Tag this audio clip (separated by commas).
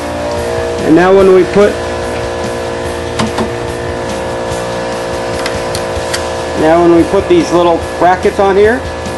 Speech, Music, Vacuum cleaner